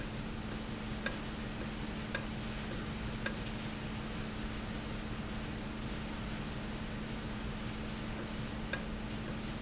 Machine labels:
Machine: valve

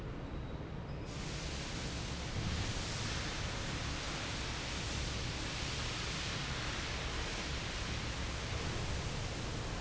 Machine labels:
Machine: fan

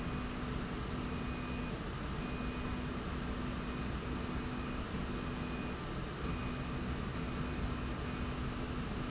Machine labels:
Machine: slide rail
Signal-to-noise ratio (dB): -6 dB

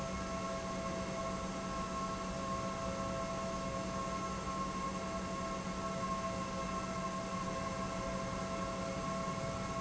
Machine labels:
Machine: pump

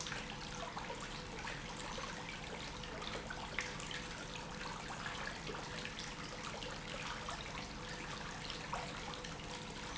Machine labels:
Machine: pump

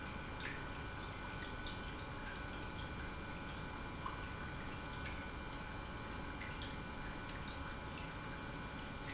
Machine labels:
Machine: pump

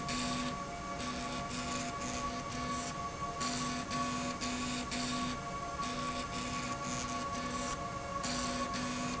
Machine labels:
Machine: slide rail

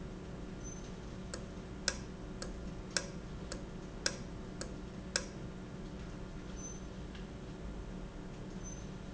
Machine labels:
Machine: valve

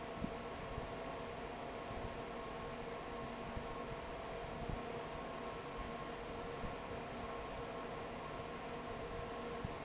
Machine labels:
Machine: fan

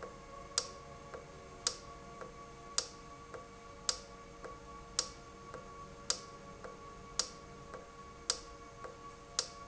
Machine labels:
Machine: valve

